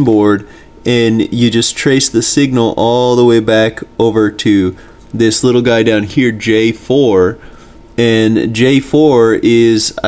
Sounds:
speech

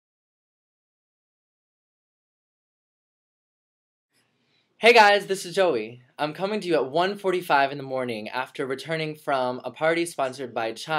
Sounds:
speech

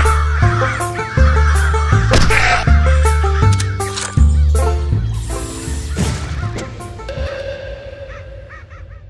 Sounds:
music, caw, crow

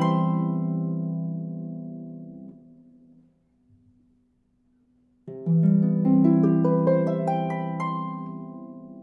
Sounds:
playing harp

